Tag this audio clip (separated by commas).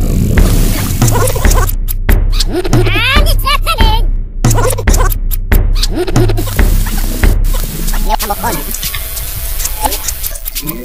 Music, Speech